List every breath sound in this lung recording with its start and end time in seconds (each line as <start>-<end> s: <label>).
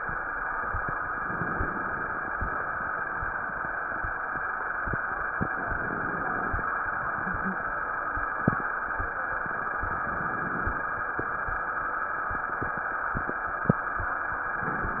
1.10-2.37 s: inhalation
1.10-2.37 s: crackles
5.45-6.72 s: inhalation
5.45-6.72 s: crackles
9.68-10.95 s: inhalation
9.68-10.95 s: crackles